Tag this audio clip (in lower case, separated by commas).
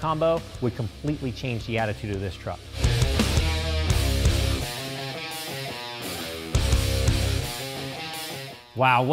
music, speech